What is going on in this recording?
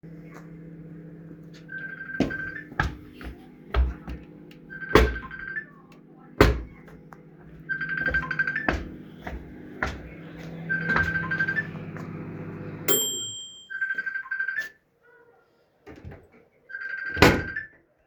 I opened wardrobe and taook some popcorn for microwave. I walked toward microwave and a phone ringing sound is coming from my friends phone. At the end, i open the microwave after timer finished.